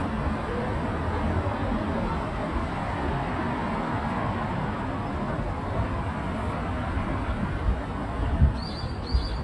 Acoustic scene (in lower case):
street